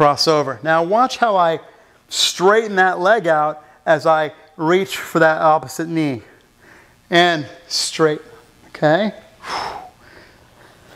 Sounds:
speech

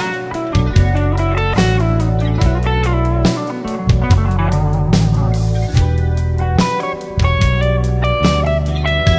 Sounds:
guitar
slide guitar
plucked string instrument
musical instrument
music
inside a small room

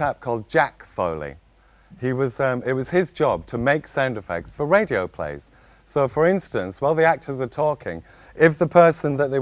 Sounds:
speech

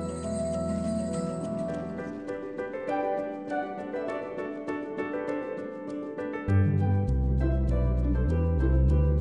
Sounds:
theme music
christmas music
music

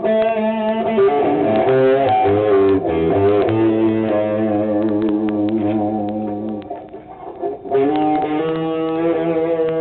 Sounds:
guitar
music
musical instrument
plucked string instrument

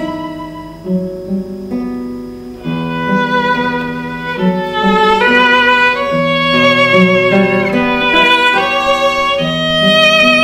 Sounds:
acoustic guitar
guitar
musical instrument
music
strum
plucked string instrument
fiddle

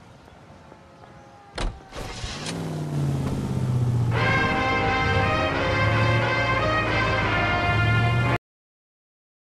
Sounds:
music

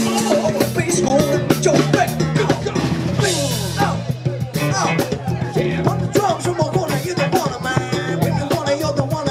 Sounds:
drum kit
speech
singing
music
drum
musical instrument

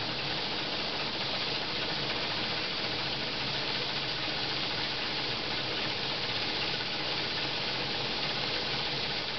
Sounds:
steam
hiss

